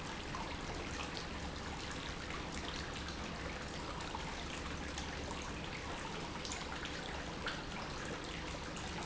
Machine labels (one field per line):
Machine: pump